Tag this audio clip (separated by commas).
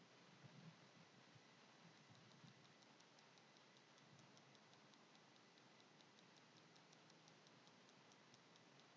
Tick